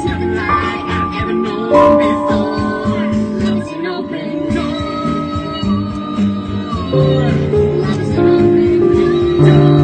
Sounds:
music
child singing
female singing

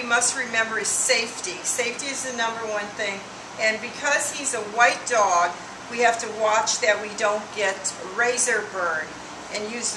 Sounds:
speech

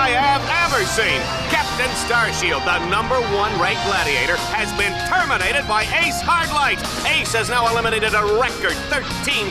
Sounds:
music
speech

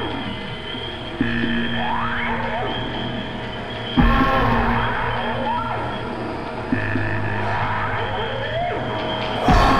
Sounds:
noise

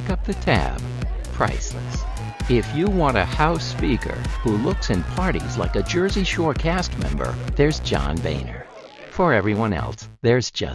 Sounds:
music
speech

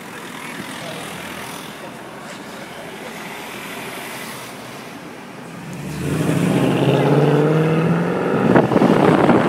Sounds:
speech

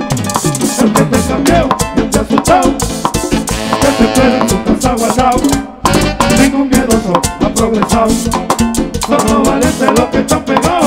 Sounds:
playing guiro

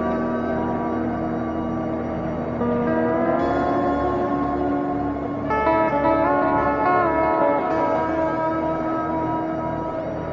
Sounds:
ambient music
music
electronic music

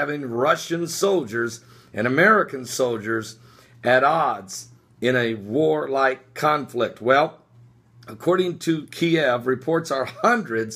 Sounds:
speech

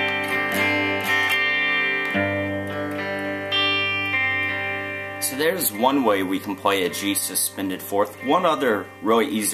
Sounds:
music
musical instrument
acoustic guitar
strum
plucked string instrument

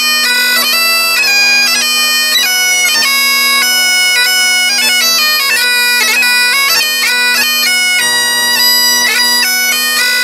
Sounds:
playing bagpipes

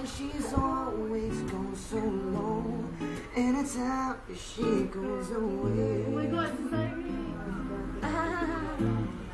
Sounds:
male singing
music
speech

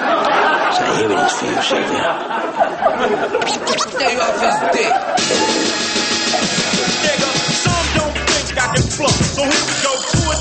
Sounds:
music
speech

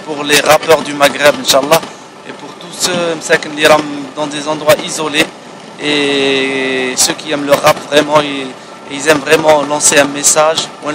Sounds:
speech

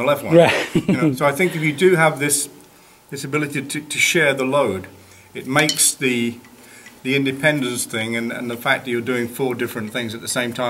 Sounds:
speech

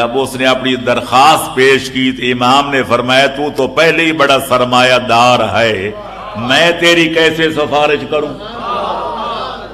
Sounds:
speech
narration
man speaking

